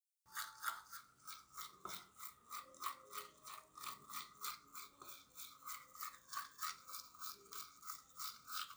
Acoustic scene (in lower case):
restroom